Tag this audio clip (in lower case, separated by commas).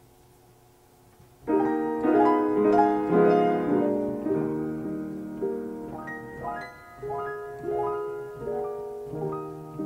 music, new-age music